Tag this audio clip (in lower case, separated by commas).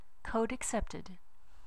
human voice, woman speaking, speech